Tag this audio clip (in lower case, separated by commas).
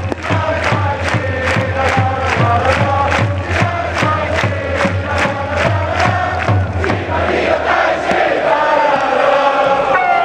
music, mantra